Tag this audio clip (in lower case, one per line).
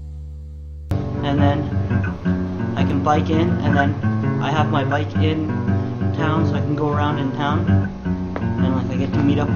music
speech